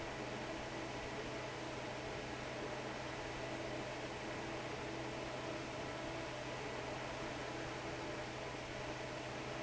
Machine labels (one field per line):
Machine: fan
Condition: normal